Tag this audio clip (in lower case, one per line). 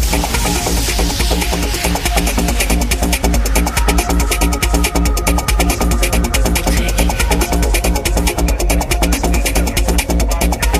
electronic music
trance music
music